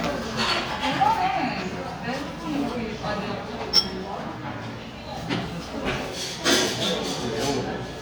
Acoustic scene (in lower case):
cafe